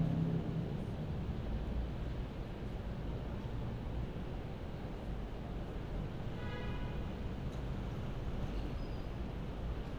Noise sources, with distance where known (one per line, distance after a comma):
car horn